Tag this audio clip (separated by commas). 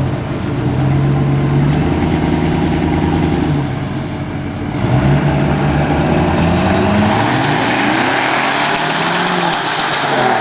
Car, Vehicle